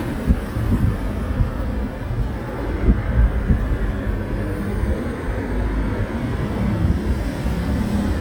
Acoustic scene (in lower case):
street